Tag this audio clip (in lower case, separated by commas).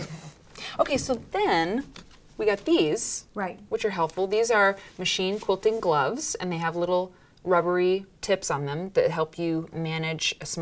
speech